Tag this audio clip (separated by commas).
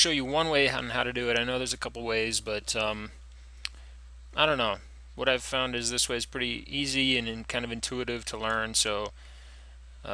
Speech